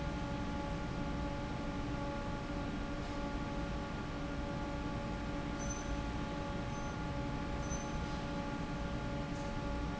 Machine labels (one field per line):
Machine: fan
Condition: normal